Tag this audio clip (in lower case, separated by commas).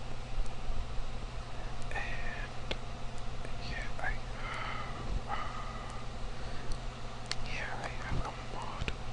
whispering, people whispering, speech